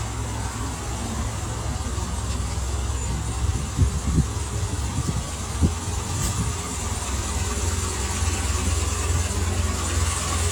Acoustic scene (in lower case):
street